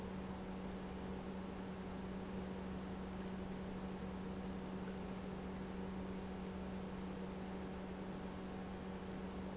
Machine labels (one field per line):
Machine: pump